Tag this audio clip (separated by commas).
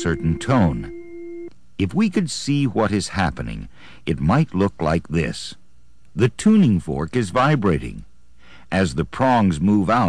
Speech